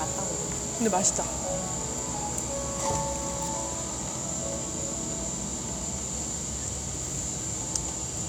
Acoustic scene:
cafe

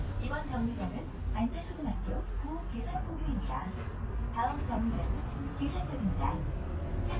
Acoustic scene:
bus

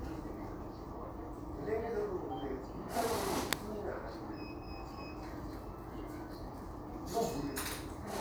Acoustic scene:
crowded indoor space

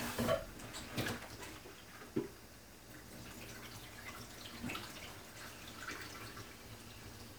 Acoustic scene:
kitchen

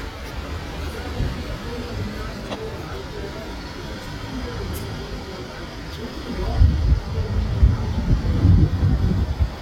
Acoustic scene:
residential area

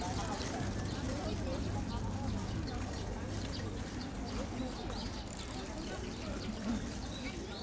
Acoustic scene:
park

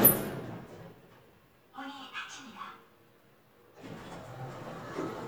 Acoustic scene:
elevator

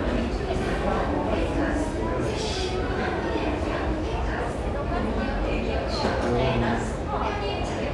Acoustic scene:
subway station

